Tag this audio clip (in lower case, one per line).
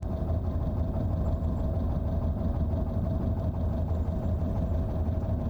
vehicle
motor vehicle (road)
car